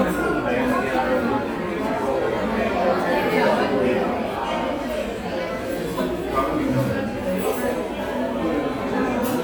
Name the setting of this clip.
crowded indoor space